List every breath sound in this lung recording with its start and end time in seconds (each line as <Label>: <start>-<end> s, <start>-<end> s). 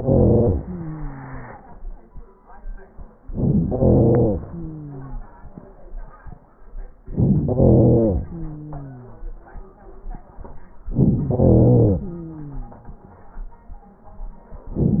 Inhalation: 0.00-0.55 s, 3.24-4.43 s, 7.12-8.18 s, 10.90-12.03 s
Exhalation: 0.55-2.06 s, 4.38-5.63 s, 8.20-9.26 s, 11.99-13.12 s